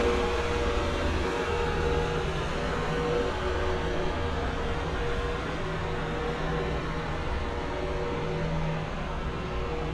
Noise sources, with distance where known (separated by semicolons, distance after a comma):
engine of unclear size, far